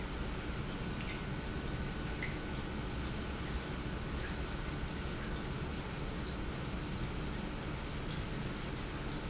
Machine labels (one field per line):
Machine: pump